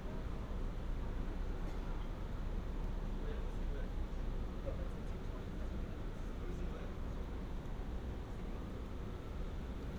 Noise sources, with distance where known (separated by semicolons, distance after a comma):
siren; person or small group talking